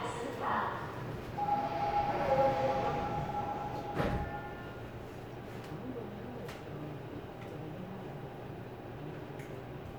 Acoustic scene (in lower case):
subway train